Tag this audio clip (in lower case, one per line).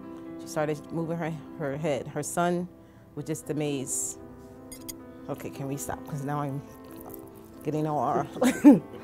music
speech